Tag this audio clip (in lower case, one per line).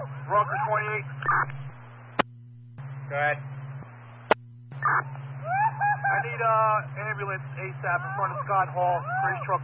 speech